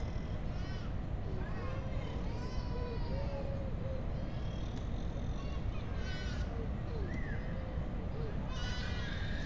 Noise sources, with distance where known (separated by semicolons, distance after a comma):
unidentified human voice, far